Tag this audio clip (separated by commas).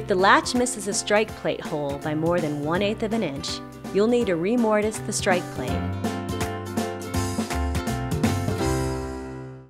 Speech, Music